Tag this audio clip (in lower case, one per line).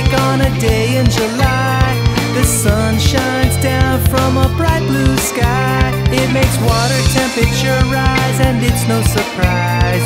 music
independent music